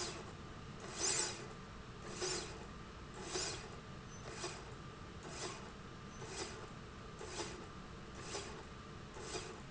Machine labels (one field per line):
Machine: slide rail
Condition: normal